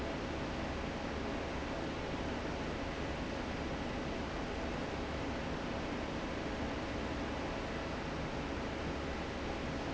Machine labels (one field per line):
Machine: fan